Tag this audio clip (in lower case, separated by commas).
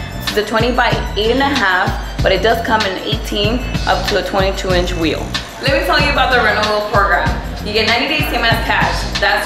music, speech